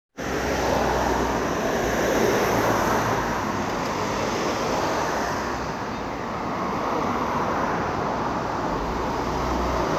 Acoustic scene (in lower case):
street